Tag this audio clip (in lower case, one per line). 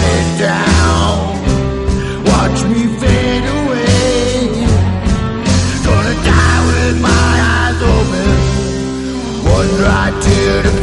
music